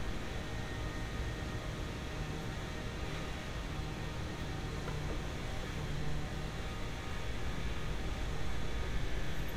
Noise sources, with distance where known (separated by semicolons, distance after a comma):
unidentified impact machinery